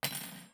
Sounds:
cutlery, home sounds

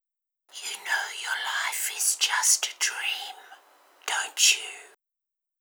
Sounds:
whispering, human voice

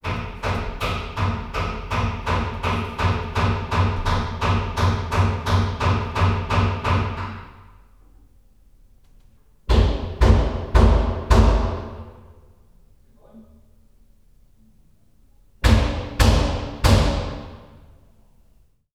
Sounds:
tools, hammer

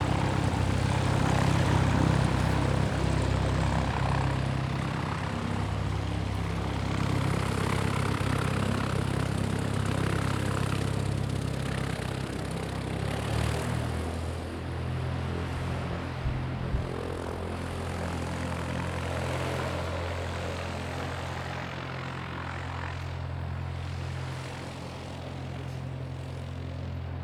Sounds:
aircraft, vehicle

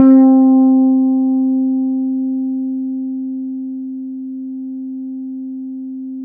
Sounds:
musical instrument, bass guitar, guitar, plucked string instrument, music

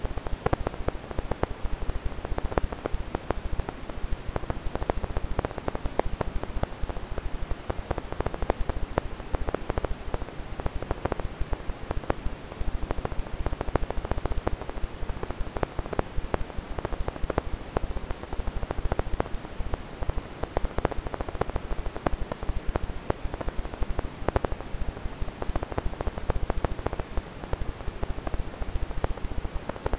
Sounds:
crackle

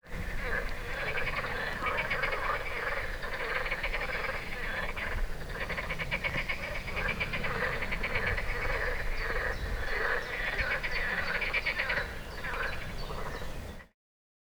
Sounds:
animal, frog, wild animals, bird

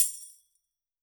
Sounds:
percussion, music, tambourine, musical instrument

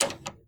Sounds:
door, home sounds

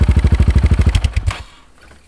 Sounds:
motor vehicle (road), motorcycle, vehicle, engine

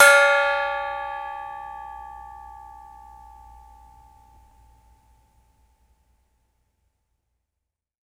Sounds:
music, percussion, musical instrument, gong

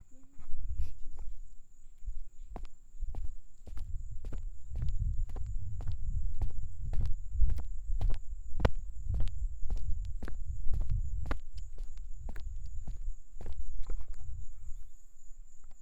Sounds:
animal, cricket, insect, wild animals

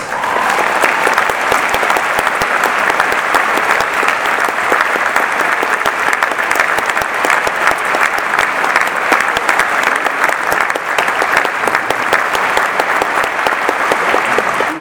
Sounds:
cheering, human group actions, applause

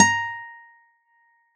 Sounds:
acoustic guitar, musical instrument, guitar, plucked string instrument, music

